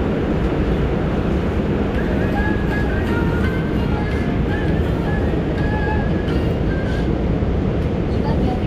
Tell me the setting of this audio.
subway train